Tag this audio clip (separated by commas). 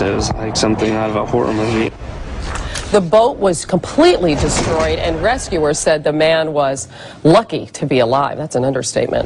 Water vehicle, Speech, Vehicle